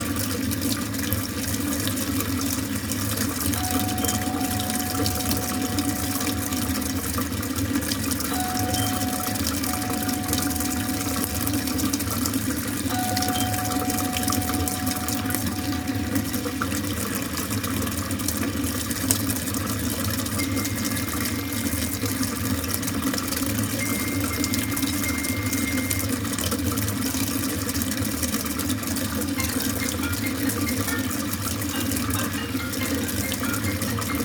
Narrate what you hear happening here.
While I was taking a shower the bell rang but I didn�t hear it after it stopped I got a couple of notification on my phone but I was still in the shower so after it my phone rang while I was still taking a shower